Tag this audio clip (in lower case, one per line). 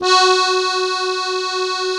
accordion
musical instrument
music